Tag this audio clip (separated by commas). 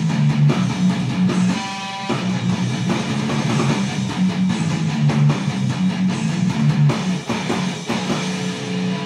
Electric guitar, Musical instrument, Plucked string instrument, Guitar, Music